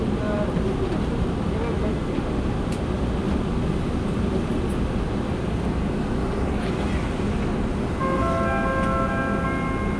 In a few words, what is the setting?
subway train